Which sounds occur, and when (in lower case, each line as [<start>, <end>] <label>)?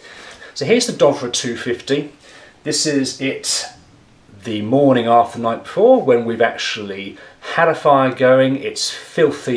[0.00, 0.48] breathing
[0.00, 9.55] mechanisms
[0.23, 0.33] tick
[0.52, 2.17] male speech
[2.20, 2.52] breathing
[2.57, 3.73] male speech
[4.38, 7.14] male speech
[7.11, 7.34] breathing
[7.40, 8.90] male speech
[8.86, 9.09] breathing